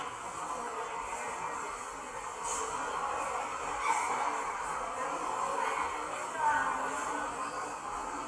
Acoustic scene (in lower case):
subway station